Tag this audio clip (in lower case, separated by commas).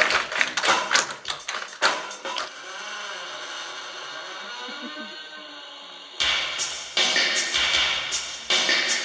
music, tap